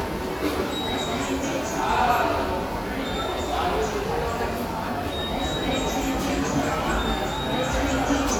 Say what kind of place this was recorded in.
subway station